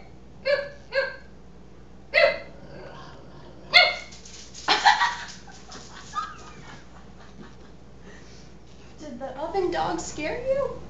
A small dog is barking gently and a woman laughs